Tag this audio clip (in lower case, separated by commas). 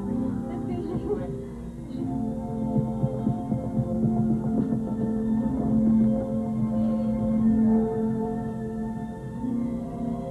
inside a large room or hall, speech, music